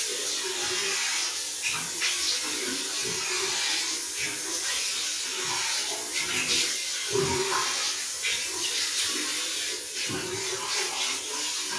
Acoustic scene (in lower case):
restroom